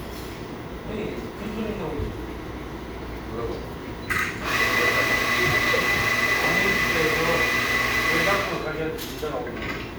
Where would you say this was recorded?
in a cafe